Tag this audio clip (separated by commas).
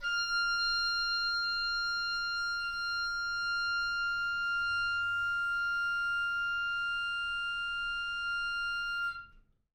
Wind instrument, Musical instrument, Music